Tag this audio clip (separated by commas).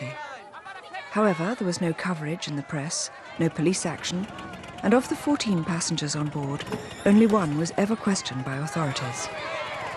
Speech